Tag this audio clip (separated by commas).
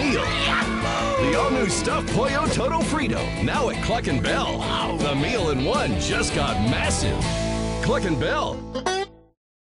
Music, Speech